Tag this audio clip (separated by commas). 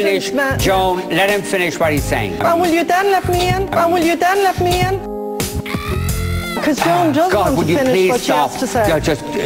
Music, Speech